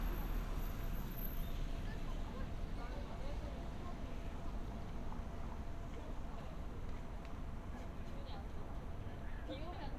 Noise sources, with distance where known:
background noise

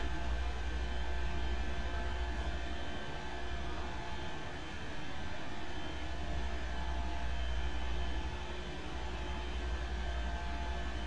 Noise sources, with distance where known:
small or medium rotating saw

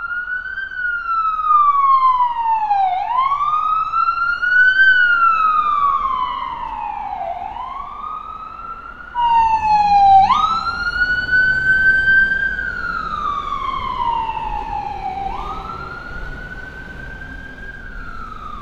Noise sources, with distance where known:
siren

